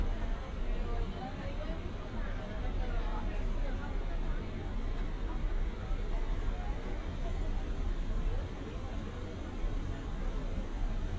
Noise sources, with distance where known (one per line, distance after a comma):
person or small group talking, near